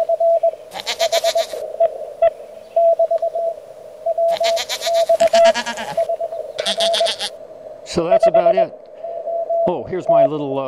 Rapid beeping sheep bleating and man speaking